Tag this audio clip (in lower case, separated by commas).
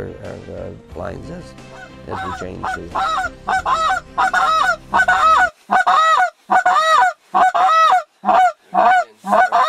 goose, honk, fowl